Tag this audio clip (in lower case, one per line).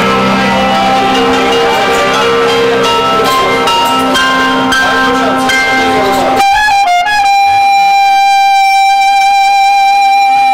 music
musical instrument
clarinet